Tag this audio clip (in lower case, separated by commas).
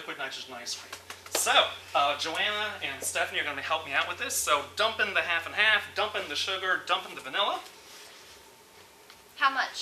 speech